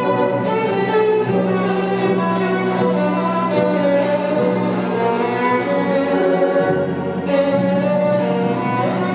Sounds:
fiddle, Music, Musical instrument

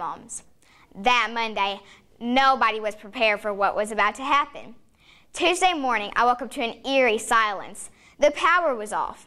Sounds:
monologue, woman speaking, Child speech, Speech

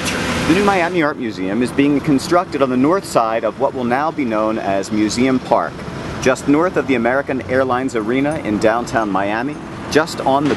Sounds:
Speech, outside, urban or man-made

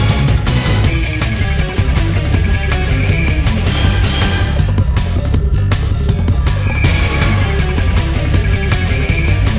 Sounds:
Music, Background music, Dance music

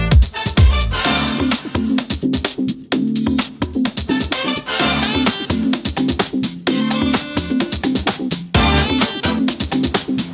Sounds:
Music

